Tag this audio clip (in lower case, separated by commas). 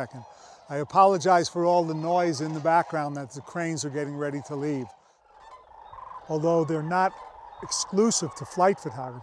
speech